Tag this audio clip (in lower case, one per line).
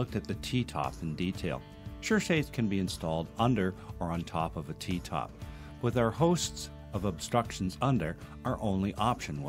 music
speech